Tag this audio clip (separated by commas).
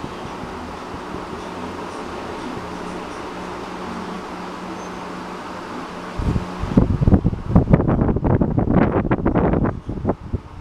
Wind